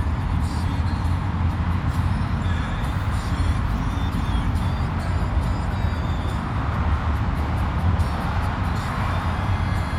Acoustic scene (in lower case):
car